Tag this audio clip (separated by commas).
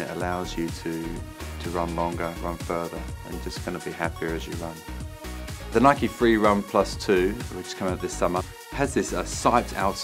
Music, inside a small room, Speech